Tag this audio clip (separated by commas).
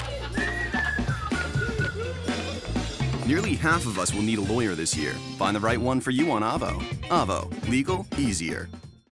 Music, Speech